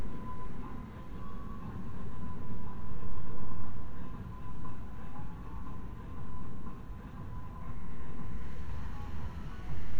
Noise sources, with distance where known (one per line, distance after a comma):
music from a fixed source, far